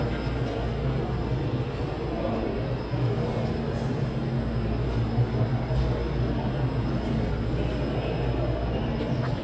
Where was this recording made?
in a subway station